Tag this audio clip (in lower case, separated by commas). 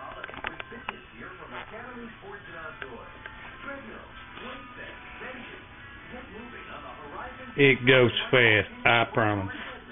speech, music